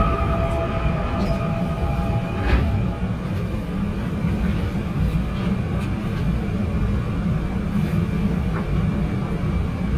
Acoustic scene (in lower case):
subway train